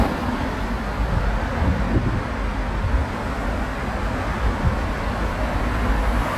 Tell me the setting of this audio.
street